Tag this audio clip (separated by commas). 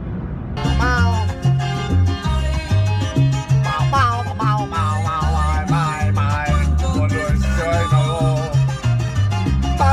Salsa music